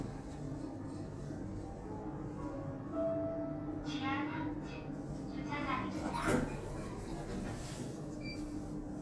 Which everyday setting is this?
elevator